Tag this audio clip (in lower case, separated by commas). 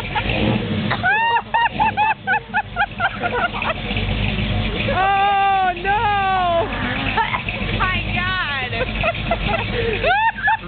truck, vehicle